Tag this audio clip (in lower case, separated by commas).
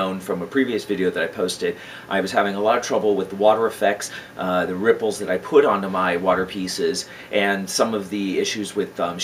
speech